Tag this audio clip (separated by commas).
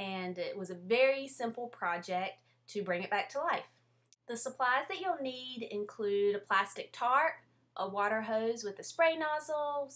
Speech